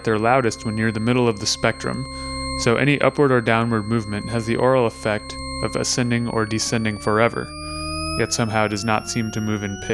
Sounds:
speech
cacophony

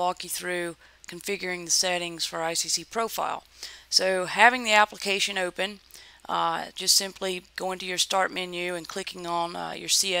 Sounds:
speech

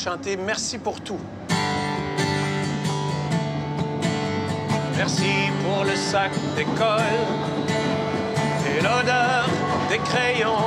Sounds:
music

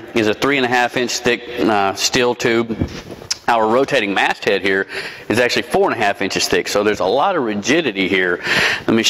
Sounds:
speech

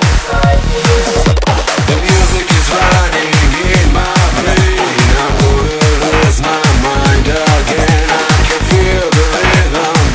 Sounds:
music
trance music
electronic music

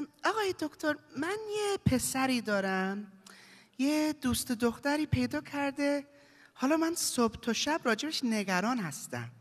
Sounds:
speech

